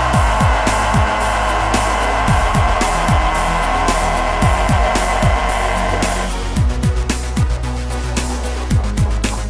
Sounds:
Music

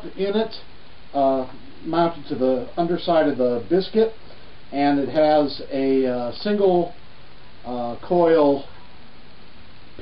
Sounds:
Speech

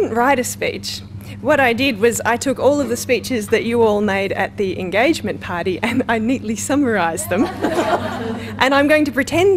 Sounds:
Speech, Female speech, monologue

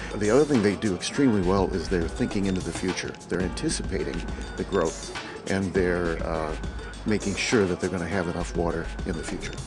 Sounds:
Music, Speech

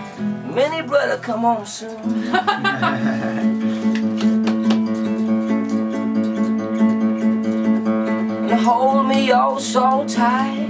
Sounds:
Singing, Music

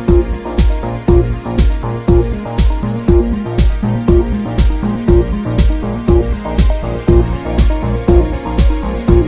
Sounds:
Music

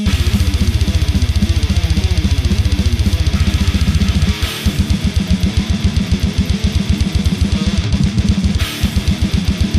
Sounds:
Music, Drum, Musical instrument, Drum kit, Bass drum

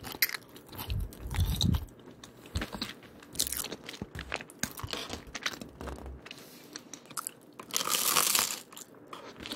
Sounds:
people eating crisps

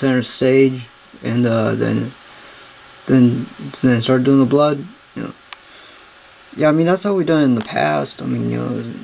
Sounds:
Speech

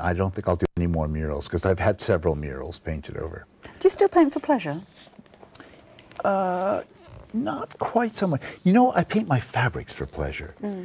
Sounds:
inside a small room, Speech

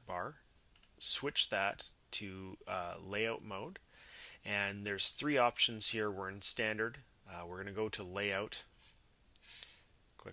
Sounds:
Speech

